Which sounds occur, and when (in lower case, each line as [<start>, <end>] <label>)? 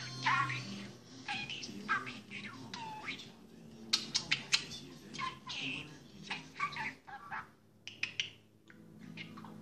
[7.82, 8.49] bird
[8.60, 8.87] generic impact sounds
[8.65, 9.61] music
[8.95, 9.50] speech synthesizer